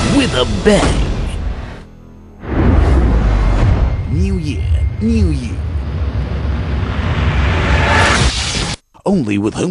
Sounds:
Speech

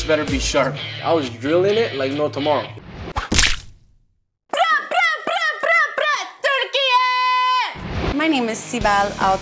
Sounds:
Speech, Music

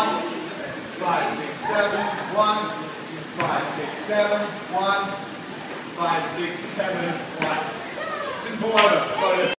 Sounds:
Speech

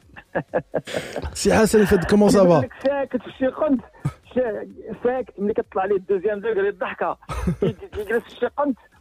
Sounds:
Speech, Radio

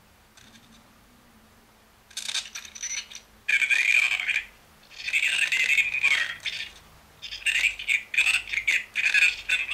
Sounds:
Speech

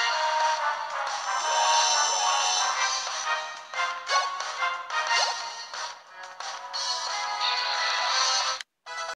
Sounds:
Music

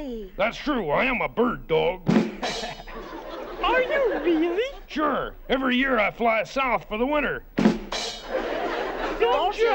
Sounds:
Music, Speech

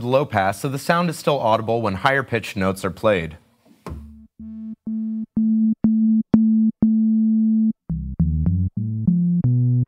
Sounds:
Speech, Music, Musical instrument, Synthesizer, Drum machine

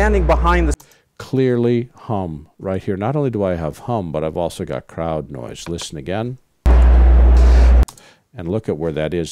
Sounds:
Music

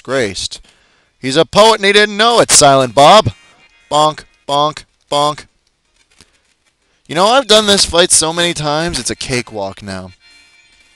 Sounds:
Speech, Music

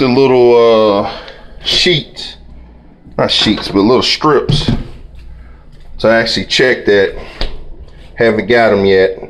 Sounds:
Speech

